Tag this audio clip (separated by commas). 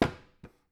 home sounds, Knock, Door